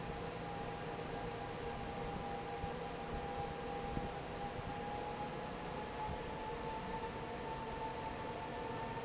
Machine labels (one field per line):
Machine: fan